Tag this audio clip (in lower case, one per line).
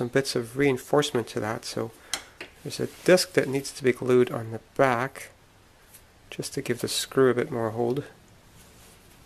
speech